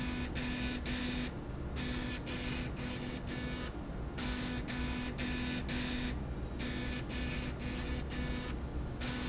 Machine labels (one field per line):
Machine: slide rail